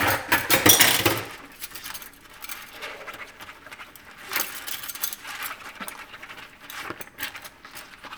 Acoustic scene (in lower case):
kitchen